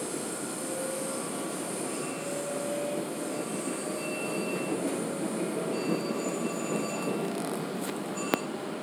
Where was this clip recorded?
on a subway train